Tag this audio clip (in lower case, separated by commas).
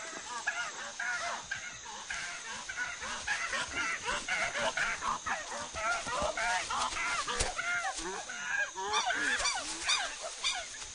chimpanzee pant-hooting